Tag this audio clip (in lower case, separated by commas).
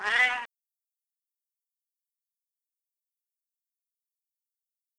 pets, animal, cat, meow